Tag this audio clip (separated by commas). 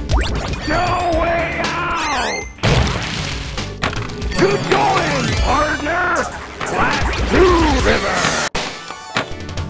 Music, Speech